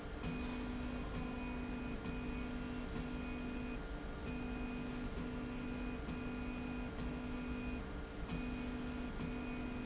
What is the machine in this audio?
slide rail